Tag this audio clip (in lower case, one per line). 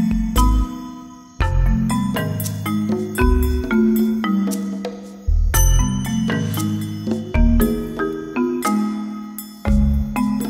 music